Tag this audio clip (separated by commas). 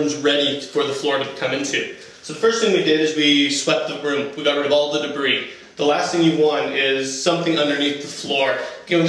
Speech